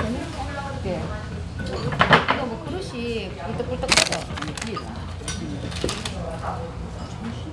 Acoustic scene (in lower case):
restaurant